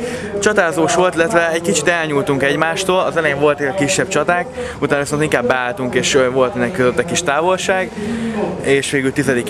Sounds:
Truck, Speech, Vehicle

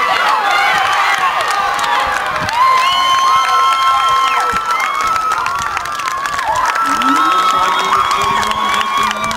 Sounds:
Speech

